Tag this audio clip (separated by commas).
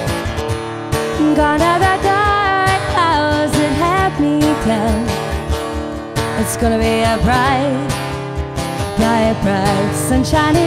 Music